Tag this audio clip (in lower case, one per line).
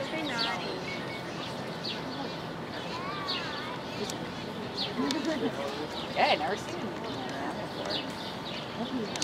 zebra braying